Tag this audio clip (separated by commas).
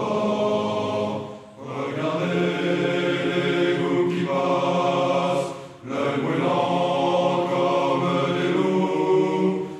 Music